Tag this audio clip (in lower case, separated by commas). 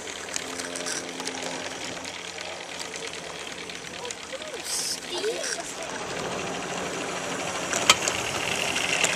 train, rail transport, speech